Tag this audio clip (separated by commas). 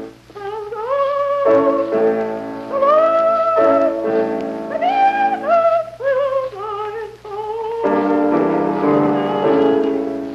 Music